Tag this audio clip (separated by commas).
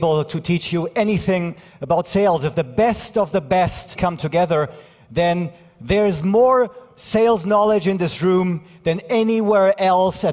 Male speech, Speech